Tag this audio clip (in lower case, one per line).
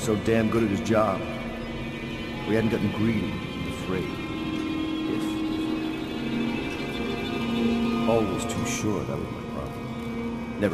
music
monologue
speech